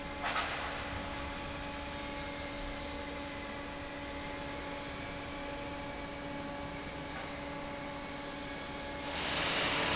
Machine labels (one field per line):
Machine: fan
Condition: normal